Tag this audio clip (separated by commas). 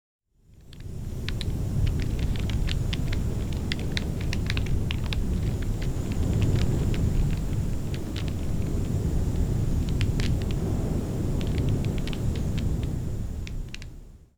Fire